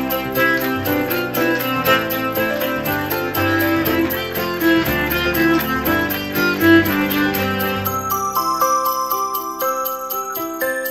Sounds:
Christian music, Christmas music, Music

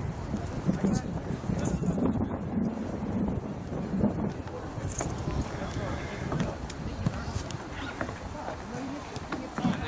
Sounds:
Speech

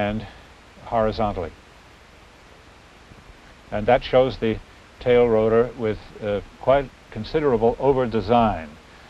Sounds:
Speech

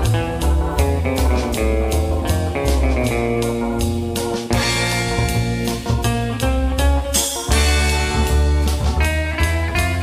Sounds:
Psychedelic rock, Music

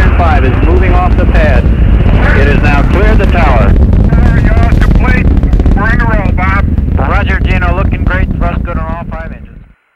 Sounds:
Speech

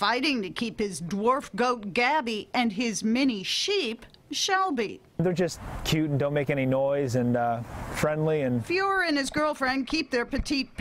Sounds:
Speech

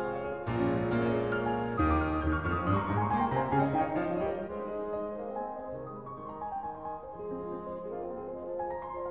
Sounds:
Music

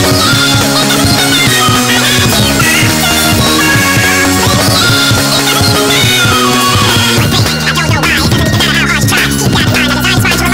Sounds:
Music

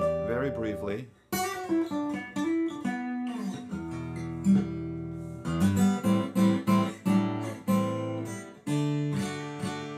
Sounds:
Guitar, Strum

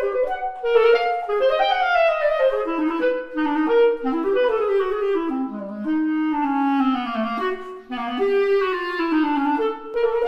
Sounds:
Brass instrument, Clarinet

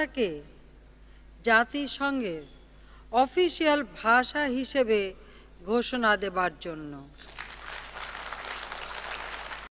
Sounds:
woman speaking, Speech, Narration

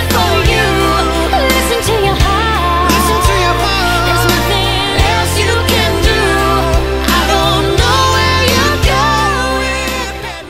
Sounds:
Music

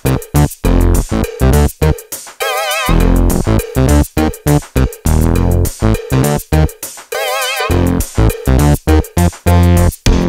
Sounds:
Drum machine, Music

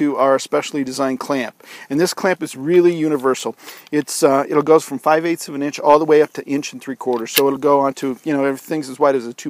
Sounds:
Speech

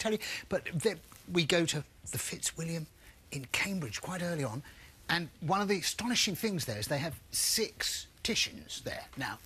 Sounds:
Speech

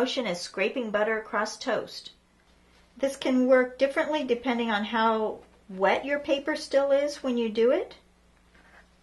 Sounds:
Speech

